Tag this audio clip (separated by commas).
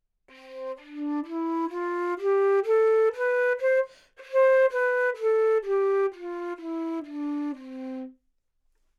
Musical instrument, Music, Wind instrument